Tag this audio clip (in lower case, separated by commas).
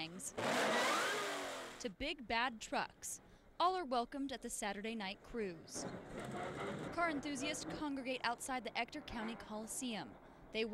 speech